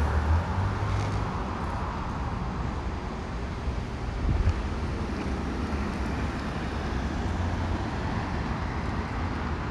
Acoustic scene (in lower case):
residential area